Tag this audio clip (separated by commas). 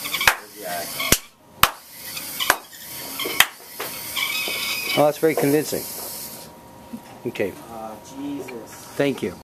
Speech